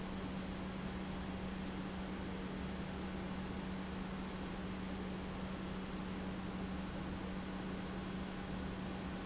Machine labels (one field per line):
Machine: pump